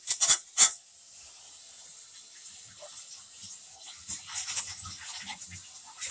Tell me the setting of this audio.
kitchen